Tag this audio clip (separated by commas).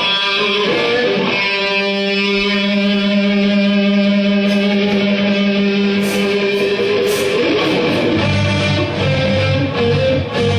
Music